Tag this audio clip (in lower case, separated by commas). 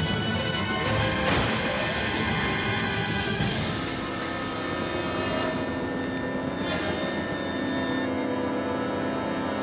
music